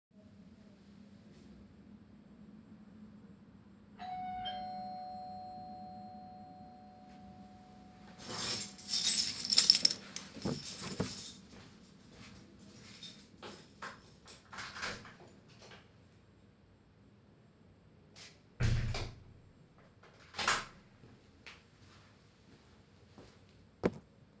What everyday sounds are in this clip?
bell ringing, keys, footsteps, door